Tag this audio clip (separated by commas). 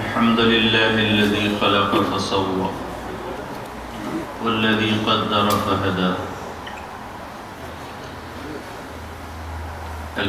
Narration, Speech, man speaking